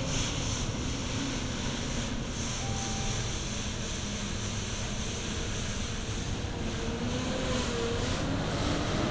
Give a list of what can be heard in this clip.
large-sounding engine